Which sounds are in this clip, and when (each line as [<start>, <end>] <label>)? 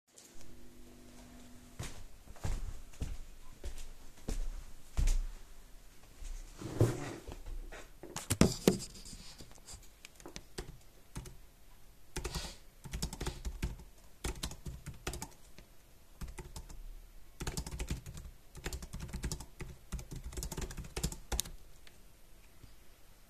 [1.68, 5.65] footsteps
[9.98, 21.53] keyboard typing